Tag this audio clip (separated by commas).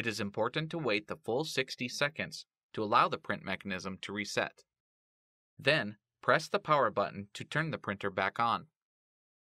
Speech